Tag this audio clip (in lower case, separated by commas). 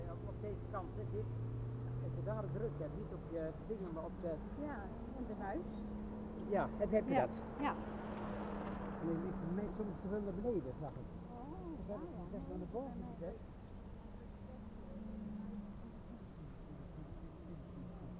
bicycle, vehicle